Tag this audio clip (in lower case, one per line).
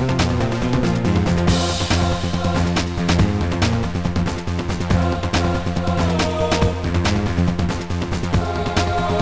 music
angry music
independent music